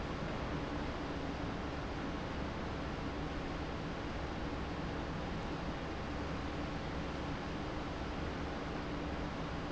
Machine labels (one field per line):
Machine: fan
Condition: abnormal